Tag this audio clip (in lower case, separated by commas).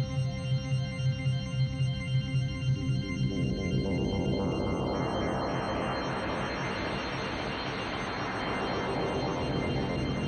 music